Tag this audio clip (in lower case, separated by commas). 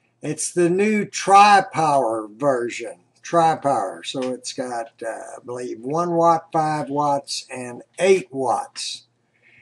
speech